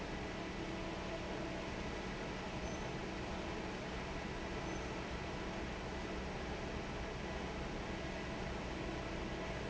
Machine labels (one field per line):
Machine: fan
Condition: normal